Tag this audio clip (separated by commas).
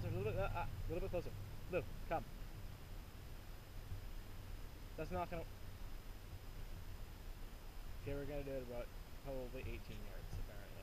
Speech